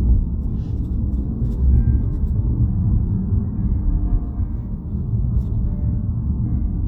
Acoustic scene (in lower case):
car